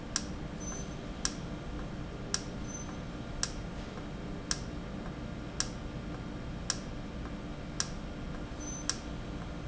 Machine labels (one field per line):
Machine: valve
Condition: normal